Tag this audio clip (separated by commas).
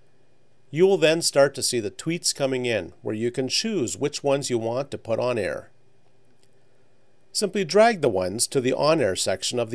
Speech